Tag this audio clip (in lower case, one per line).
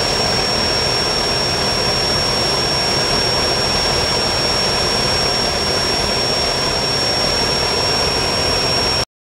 engine